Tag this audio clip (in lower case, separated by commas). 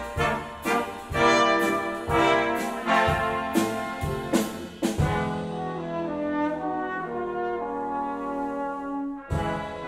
french horn, brass instrument, music